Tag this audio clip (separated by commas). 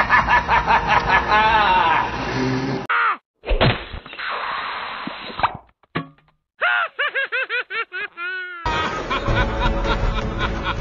Laughter, Music